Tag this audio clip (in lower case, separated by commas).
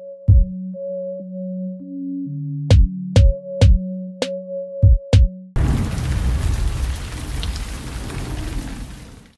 music